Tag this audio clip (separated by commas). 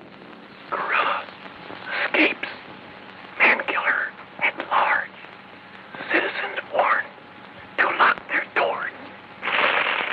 Speech